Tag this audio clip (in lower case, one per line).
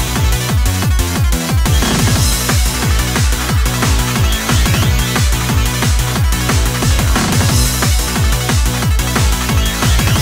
music
techno